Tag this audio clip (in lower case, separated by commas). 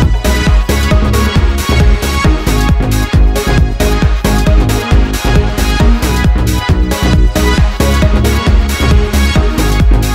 music, trance music